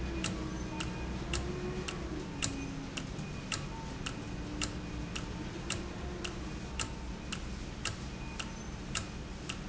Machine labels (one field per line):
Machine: valve